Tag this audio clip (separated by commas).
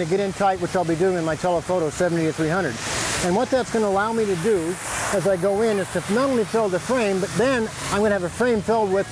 Speech